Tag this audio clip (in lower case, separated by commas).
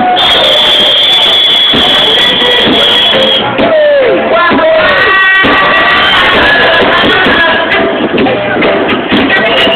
speech, music